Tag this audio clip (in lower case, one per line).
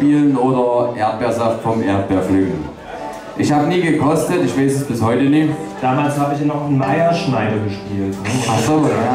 speech
music